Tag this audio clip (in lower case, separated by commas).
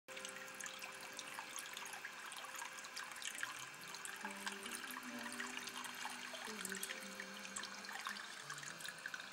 music, water